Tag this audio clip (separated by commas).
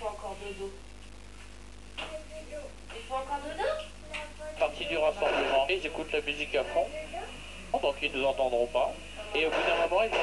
inside a small room, Speech